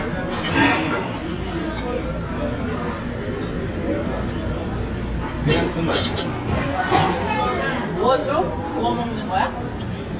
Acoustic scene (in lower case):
crowded indoor space